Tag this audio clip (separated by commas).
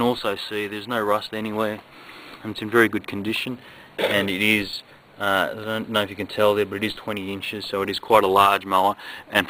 Speech